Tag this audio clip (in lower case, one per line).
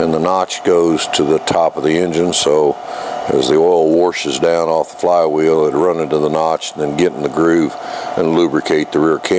engine
idling
speech